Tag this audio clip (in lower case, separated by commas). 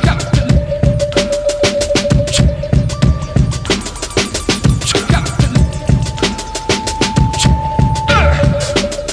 music